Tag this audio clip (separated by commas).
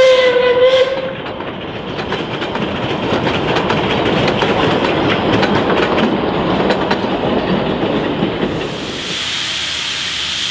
train whistling